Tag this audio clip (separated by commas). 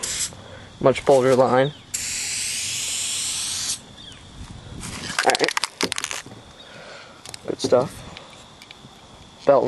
Speech, Spray